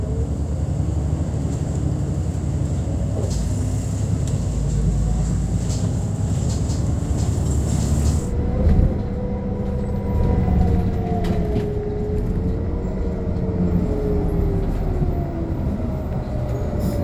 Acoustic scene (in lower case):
bus